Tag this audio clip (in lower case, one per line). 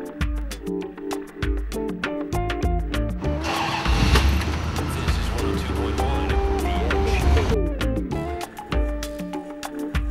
speech
music
vehicle